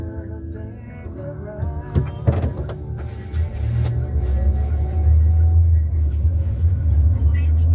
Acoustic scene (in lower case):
car